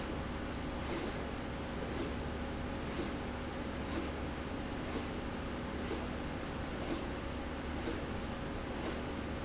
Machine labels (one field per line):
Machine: slide rail